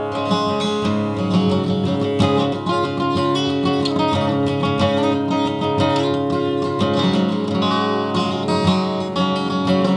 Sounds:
guitar, music, plucked string instrument, musical instrument, acoustic guitar

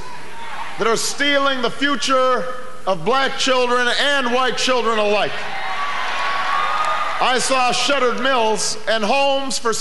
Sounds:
speech, narration, male speech

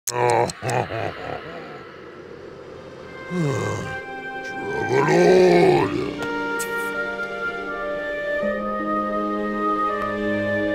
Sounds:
speech, music, sad music

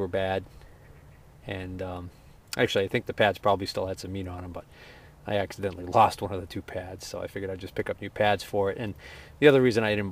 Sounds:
speech

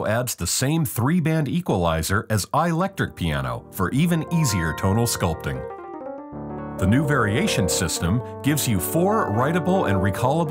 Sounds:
speech, music

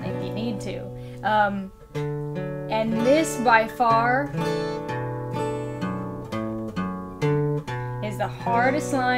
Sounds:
speech, acoustic guitar, plucked string instrument, music, guitar

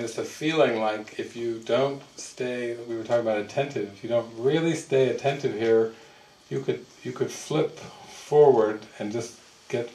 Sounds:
speech

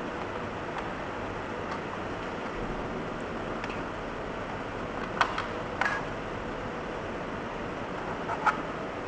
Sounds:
writing

